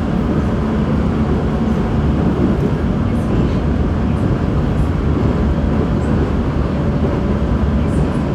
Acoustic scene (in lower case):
subway train